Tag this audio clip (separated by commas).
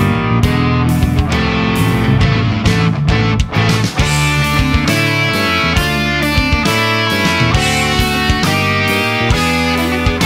Musical instrument, Music, Guitar, Electric guitar